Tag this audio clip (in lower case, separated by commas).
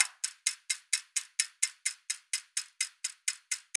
clock, mechanisms